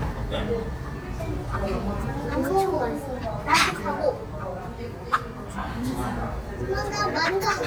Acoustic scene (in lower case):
restaurant